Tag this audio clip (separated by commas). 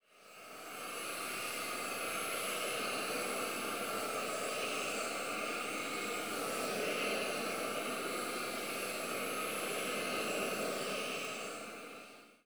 Hiss